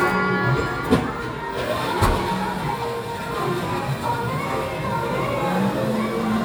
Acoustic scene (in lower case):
cafe